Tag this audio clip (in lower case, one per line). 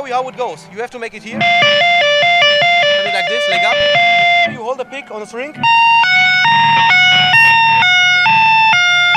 speech
musical instrument
music
plucked string instrument
guitar